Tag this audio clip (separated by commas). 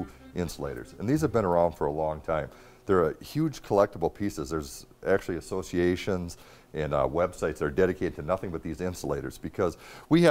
Music, Speech